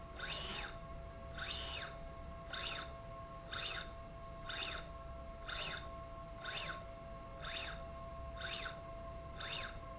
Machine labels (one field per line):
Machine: slide rail